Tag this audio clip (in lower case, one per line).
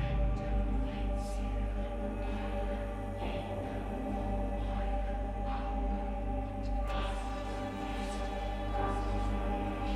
music